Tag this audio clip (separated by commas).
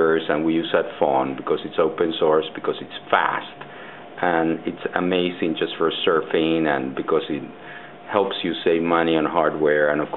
Speech